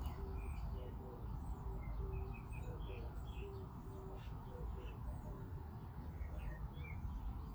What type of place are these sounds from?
park